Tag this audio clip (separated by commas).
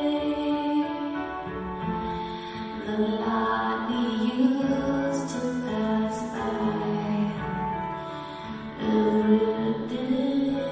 Music